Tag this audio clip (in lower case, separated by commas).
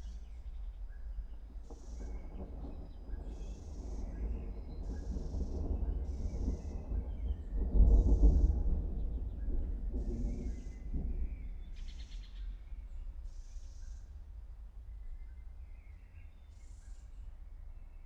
thunder, thunderstorm